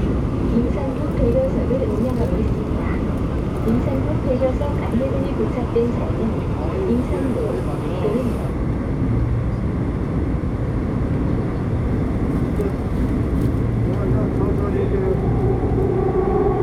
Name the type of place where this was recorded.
subway train